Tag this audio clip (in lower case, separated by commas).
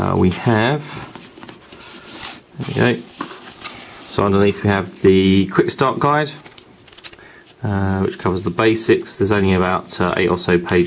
speech